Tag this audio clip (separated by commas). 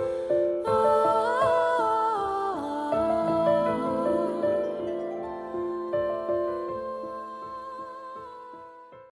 Music